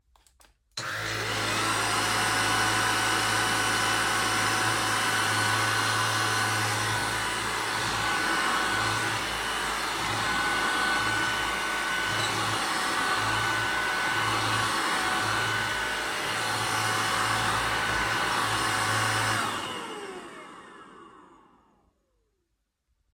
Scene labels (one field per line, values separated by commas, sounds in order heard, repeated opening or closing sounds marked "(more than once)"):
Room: bedroom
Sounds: vacuum cleaner